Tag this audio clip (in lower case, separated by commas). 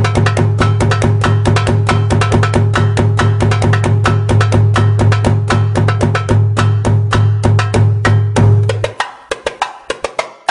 music, wood block, inside a small room